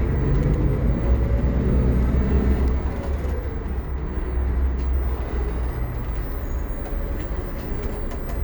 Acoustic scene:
bus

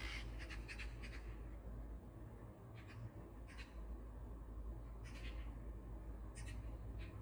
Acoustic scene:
park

